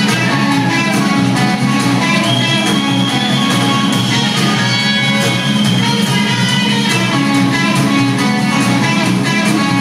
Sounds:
Music, Blues

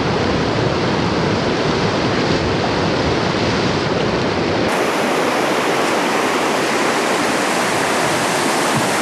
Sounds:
Boat, Vehicle

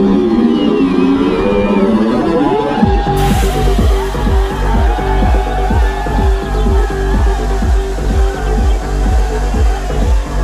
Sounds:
Music

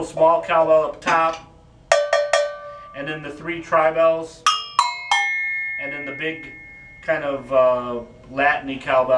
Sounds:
Music, Musical instrument, Cymbal

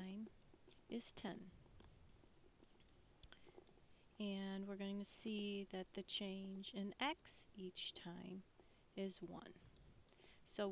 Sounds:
Speech

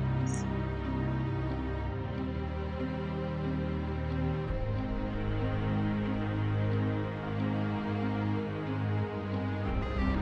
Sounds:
Theme music, Music

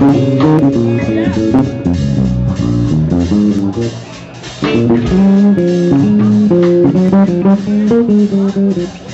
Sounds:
Bass guitar, Plucked string instrument, Music, Speech, Musical instrument, Guitar

